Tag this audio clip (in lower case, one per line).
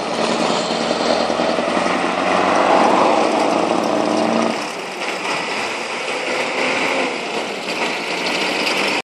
clatter